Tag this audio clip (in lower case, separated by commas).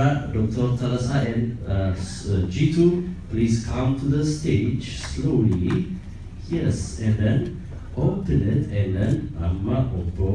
monologue, speech, man speaking